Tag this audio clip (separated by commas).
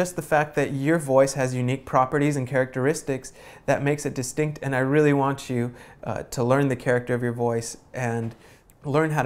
Speech